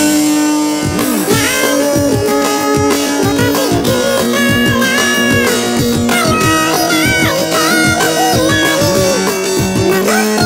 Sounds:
Music

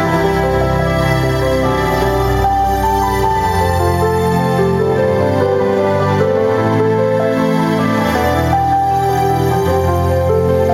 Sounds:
Music

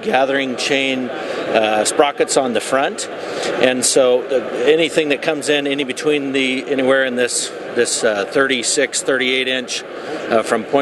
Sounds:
Speech

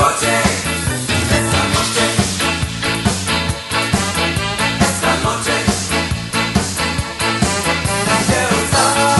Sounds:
Music, Disco

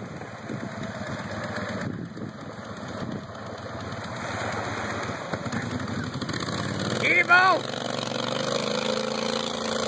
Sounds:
Motorboat, Water vehicle, Wind, Wind noise (microphone)

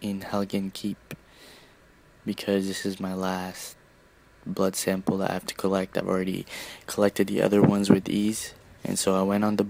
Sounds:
Speech

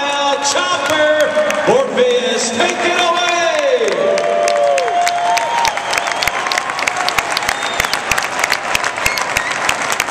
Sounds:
Speech

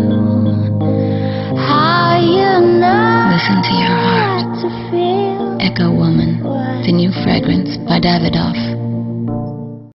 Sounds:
Music, Speech

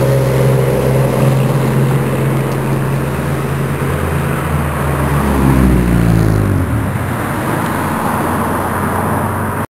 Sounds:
Vehicle, Truck

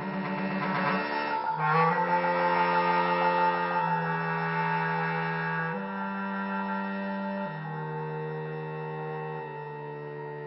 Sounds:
Percussion, Music

